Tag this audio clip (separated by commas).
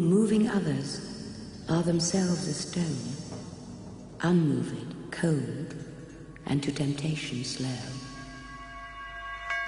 Speech